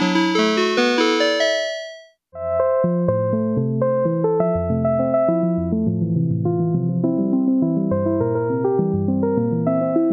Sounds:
Music

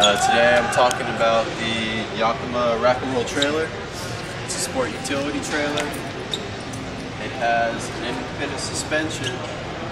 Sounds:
Speech

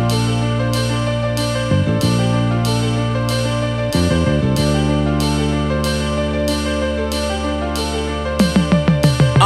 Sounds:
Blues, Music

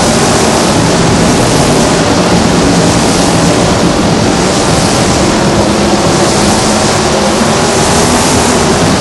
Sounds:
Car passing by

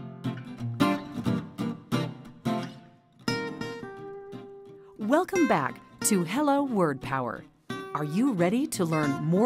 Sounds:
Speech, Music

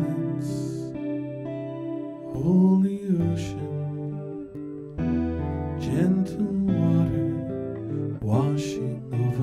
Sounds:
Music

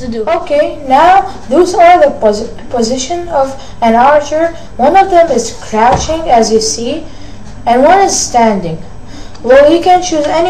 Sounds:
Speech

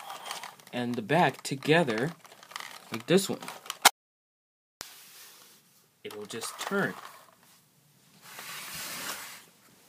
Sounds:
Speech

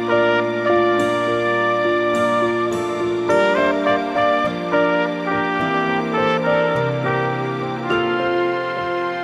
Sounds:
playing trumpet

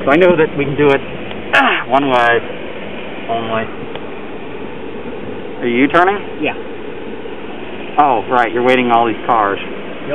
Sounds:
Speech

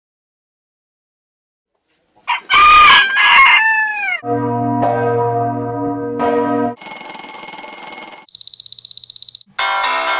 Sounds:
rooster, Fowl, Crowing

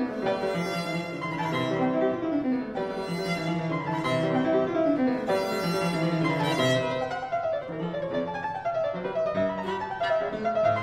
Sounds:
fiddle, Music, Musical instrument

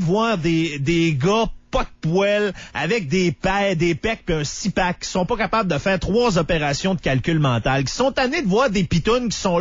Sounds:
Speech

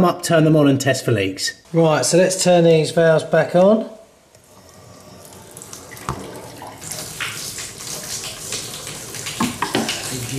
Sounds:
Water, Sink (filling or washing), faucet

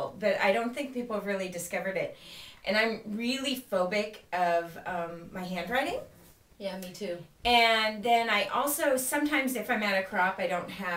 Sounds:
Speech

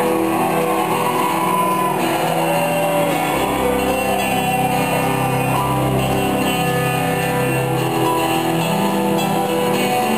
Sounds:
Music

